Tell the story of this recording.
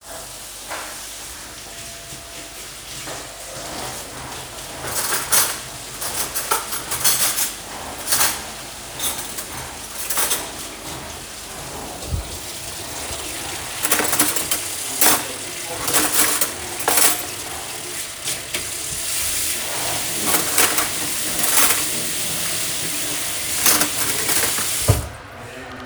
Someone was cleaning the floor with a vacuum cleaner, while I was searching for a big fork in a drawer. Also at the same time, my neighbour was doing dishes.